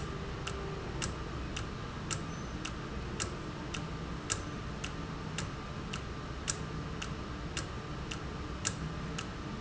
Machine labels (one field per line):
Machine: valve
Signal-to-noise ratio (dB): -6 dB